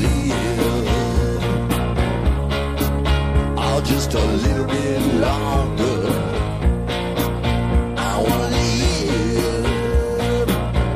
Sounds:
Rock music, Music

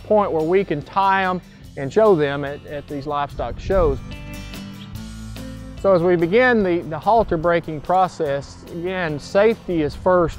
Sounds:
Music, Speech

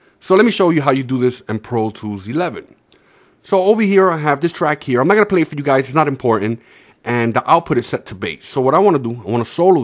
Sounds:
Speech

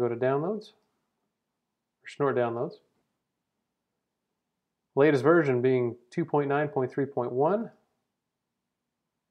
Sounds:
Speech

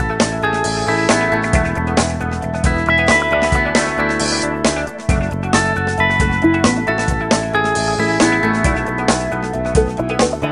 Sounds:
Music

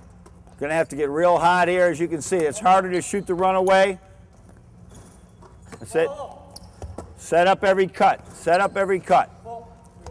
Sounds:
Basketball bounce, Speech

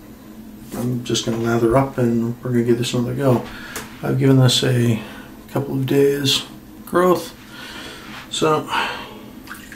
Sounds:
Speech

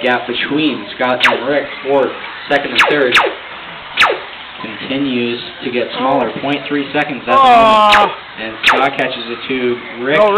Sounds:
Car, Speech

